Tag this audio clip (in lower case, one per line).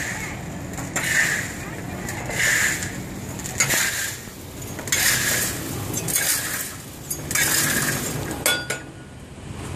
speech